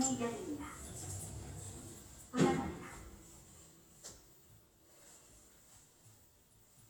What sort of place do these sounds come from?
elevator